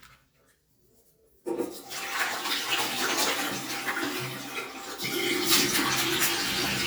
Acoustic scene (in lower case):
restroom